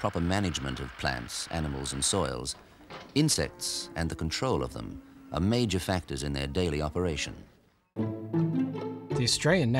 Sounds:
music
speech

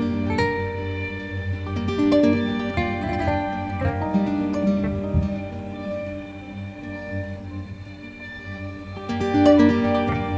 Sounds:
music

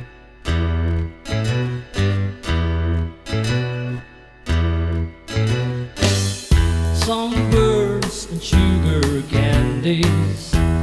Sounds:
inside a small room
singing
music

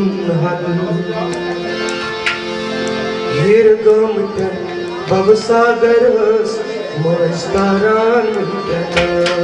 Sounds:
speech
singing
music
tabla
music of asia
musical instrument

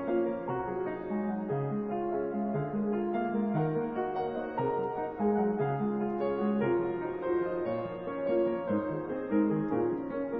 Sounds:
piano

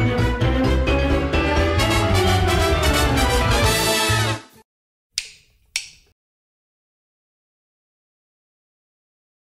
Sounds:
music

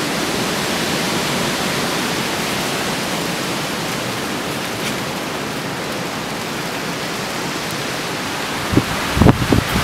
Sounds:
wind
wind noise (microphone)

